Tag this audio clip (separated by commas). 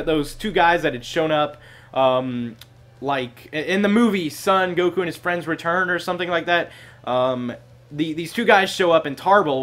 Speech